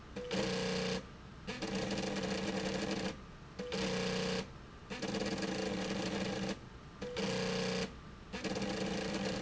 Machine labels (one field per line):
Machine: slide rail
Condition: abnormal